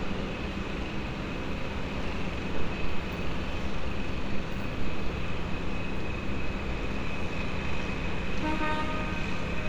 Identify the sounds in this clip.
car horn